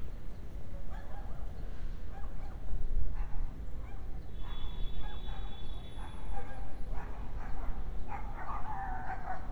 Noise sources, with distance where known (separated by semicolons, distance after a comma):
car horn, far; dog barking or whining, far